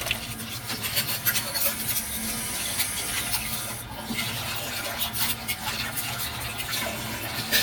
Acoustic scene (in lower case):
kitchen